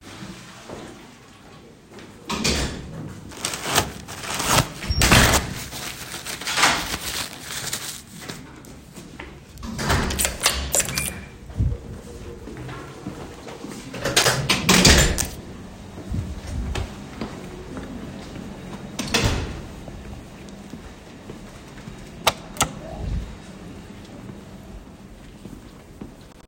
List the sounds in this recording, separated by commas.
footsteps, door